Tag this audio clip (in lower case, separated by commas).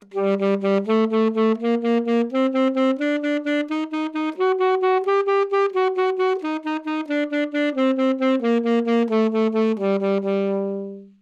music, musical instrument, woodwind instrument